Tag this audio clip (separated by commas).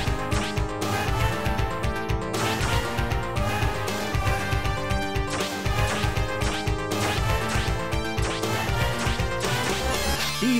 Music